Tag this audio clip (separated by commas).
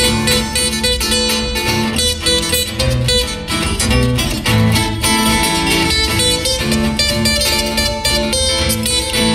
Guitar, Music, Musical instrument